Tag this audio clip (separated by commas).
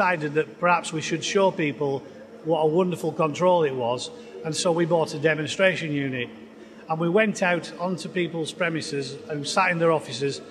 Speech